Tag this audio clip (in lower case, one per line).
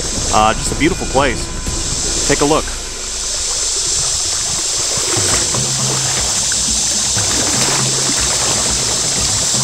speech